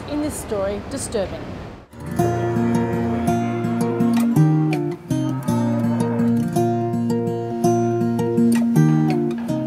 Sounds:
Music, Speech

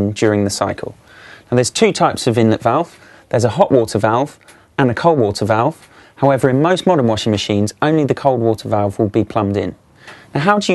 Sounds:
Speech

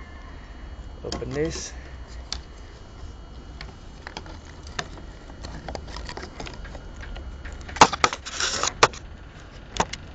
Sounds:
Speech

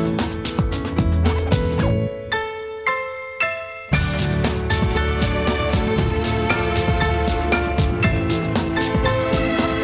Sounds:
Music, Dance music

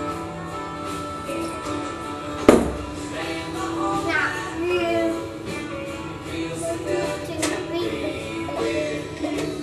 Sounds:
Music, Male singing

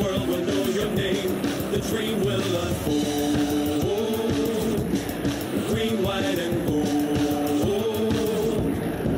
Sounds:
Music

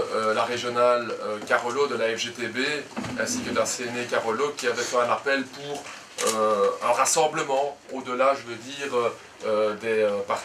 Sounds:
Speech

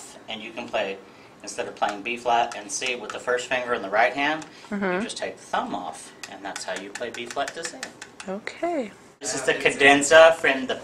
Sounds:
Speech, Conversation

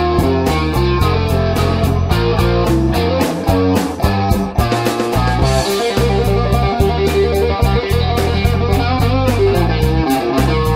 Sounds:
Musical instrument, Guitar, Acoustic guitar, Strum, Music, Plucked string instrument

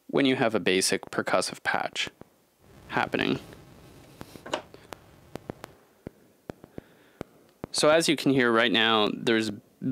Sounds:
Speech

